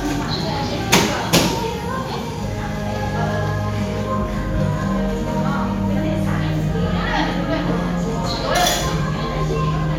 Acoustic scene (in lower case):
cafe